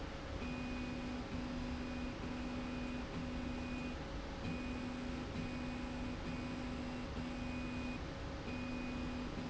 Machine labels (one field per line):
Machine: slide rail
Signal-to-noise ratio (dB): 0 dB